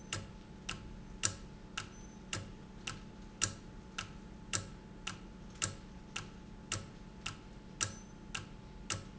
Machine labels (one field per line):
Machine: valve